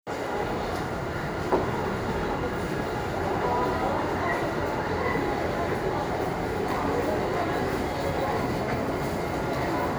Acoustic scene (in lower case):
subway station